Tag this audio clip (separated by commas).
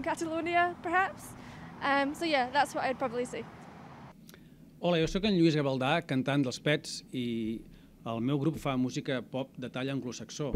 Speech